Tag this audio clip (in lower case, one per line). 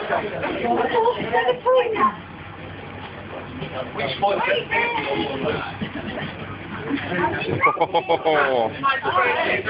speech
vehicle